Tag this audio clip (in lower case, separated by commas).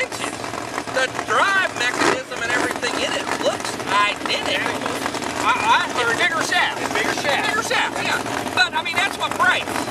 speech, motorboat, vehicle